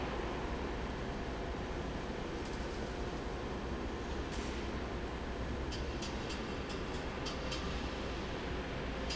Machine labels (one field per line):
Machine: fan